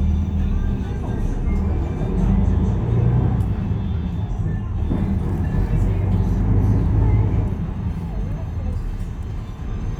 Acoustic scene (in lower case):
bus